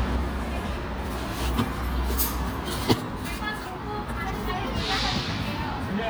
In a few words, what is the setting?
park